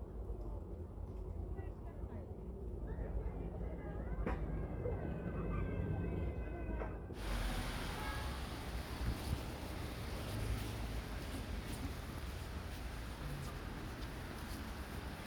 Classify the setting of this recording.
residential area